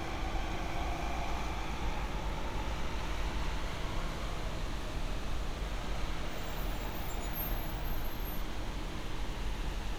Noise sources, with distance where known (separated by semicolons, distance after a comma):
large-sounding engine, near